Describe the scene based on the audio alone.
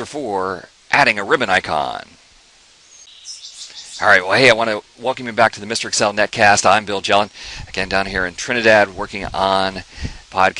A man speaking together with birds chirping